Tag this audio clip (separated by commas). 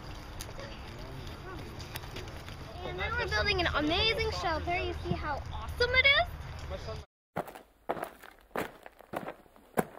Speech